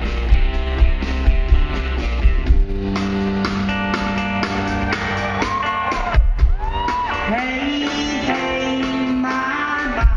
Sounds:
music, guitar, plucked string instrument, musical instrument, singing

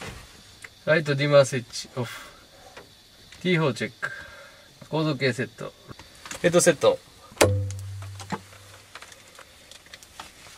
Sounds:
speech

